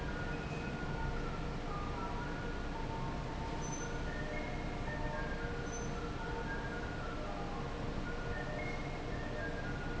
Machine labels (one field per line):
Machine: fan